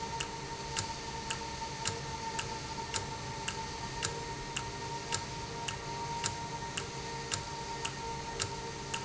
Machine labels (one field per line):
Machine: valve